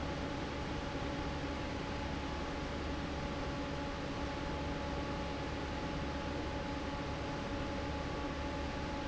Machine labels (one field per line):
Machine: fan